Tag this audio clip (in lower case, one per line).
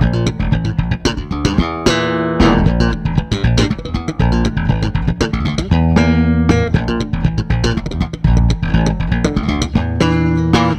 bass guitar
musical instrument
guitar
inside a large room or hall
playing bass guitar
plucked string instrument
music